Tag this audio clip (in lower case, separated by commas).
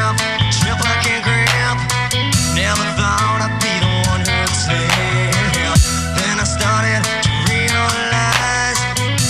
electronic music, dubstep, music